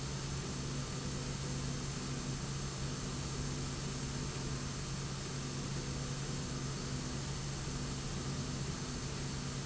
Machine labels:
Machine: slide rail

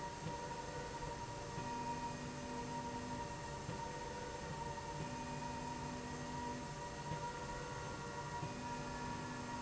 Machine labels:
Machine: slide rail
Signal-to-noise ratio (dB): 0 dB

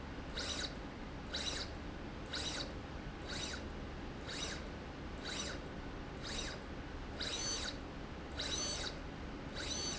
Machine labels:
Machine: slide rail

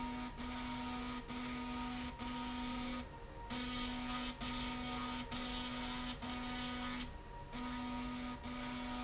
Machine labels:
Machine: slide rail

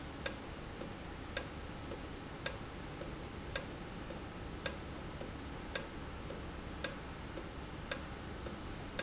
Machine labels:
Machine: valve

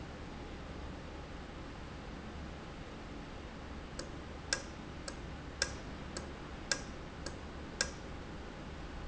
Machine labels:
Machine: valve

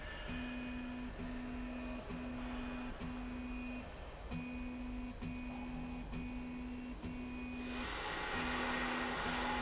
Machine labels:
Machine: slide rail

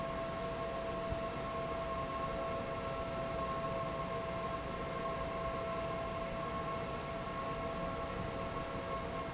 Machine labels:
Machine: fan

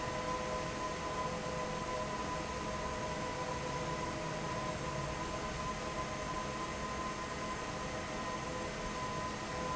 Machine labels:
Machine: fan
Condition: normal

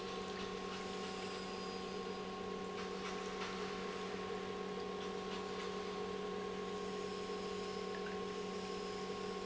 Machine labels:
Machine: pump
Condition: normal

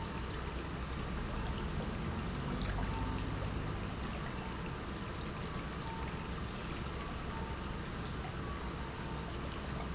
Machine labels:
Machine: pump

